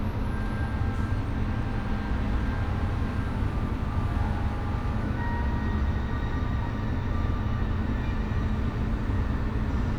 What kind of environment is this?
bus